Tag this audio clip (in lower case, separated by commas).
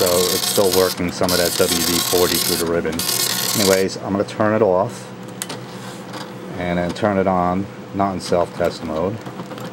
printer, speech